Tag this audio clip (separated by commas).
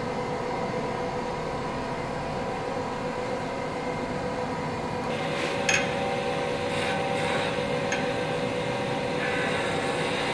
lathe spinning